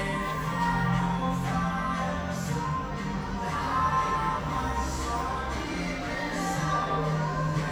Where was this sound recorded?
in a cafe